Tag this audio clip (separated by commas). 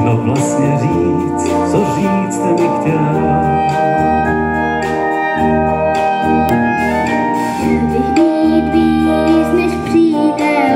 Orchestra, Music, Singing, Wind instrument